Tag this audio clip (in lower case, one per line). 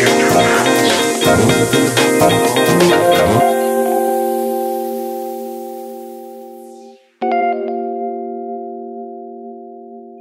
tubular bells